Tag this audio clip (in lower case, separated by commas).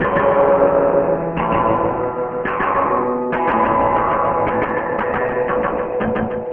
musical instrument, music, guitar, plucked string instrument